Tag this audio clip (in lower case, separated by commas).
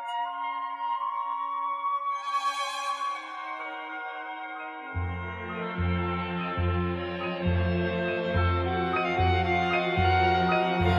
dance music, music